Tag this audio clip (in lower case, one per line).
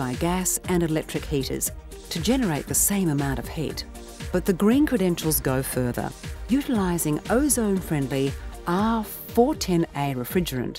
speech
music